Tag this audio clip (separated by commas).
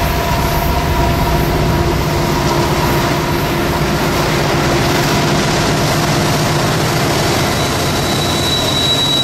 Railroad car, Train